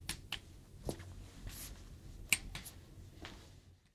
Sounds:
Walk

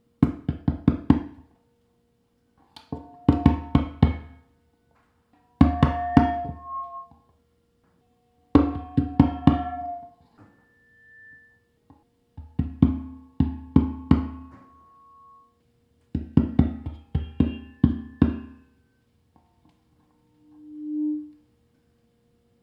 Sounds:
Tap

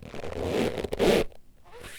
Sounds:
Squeak

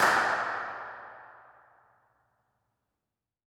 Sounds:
Clapping, Hands

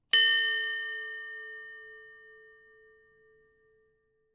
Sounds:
Bell

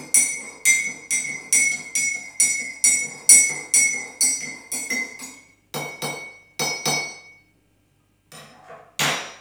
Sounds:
Liquid

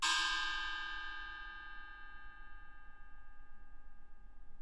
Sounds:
Musical instrument, Music, Gong, Percussion

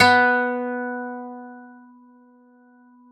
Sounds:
Music, Guitar, Acoustic guitar, Musical instrument, Plucked string instrument

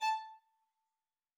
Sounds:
Musical instrument, Music, Bowed string instrument

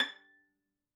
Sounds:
Bowed string instrument, Musical instrument, Music

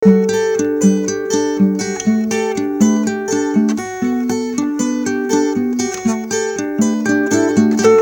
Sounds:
Guitar, Musical instrument, Acoustic guitar, Music, Plucked string instrument

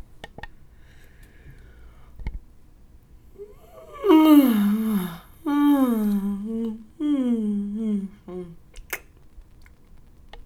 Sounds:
Human voice

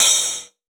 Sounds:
Hi-hat, Musical instrument, Cymbal, Percussion, Music

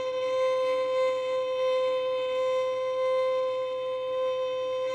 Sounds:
Bowed string instrument, Musical instrument, Music

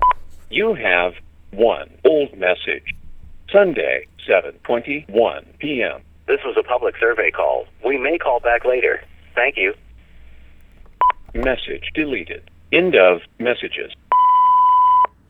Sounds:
Telephone, Alarm

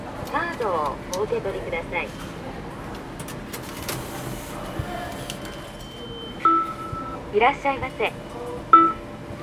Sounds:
Human voice, Vehicle, underground, Rail transport

